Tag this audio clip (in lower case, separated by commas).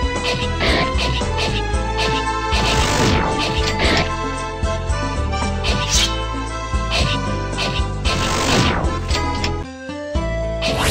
music